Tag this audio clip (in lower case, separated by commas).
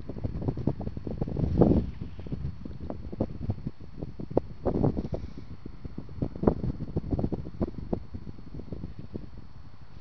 wind, wind noise (microphone)